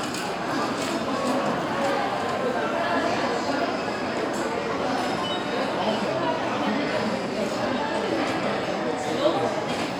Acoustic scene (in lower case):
restaurant